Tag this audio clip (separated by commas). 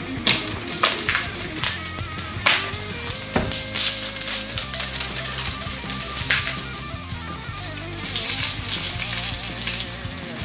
popping popcorn